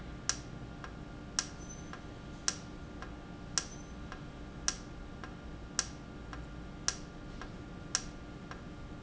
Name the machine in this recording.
valve